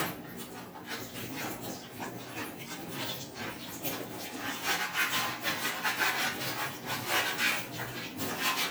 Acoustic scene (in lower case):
kitchen